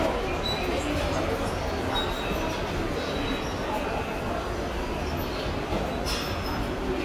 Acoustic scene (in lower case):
subway station